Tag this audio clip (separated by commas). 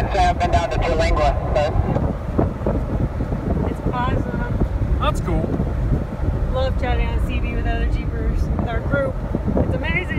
Car, Vehicle, Thunderstorm